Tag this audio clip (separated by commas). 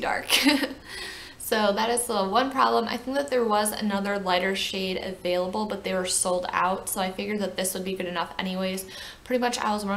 Speech